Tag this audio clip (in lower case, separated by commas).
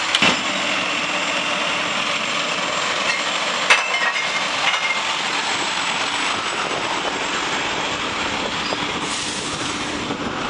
truck, vehicle, outside, urban or man-made